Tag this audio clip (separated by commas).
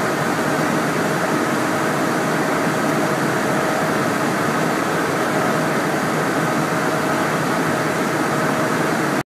Aircraft